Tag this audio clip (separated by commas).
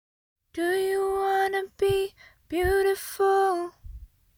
Female singing, Singing, Human voice